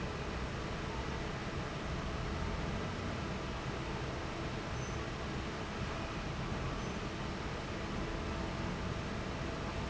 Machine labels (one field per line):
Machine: fan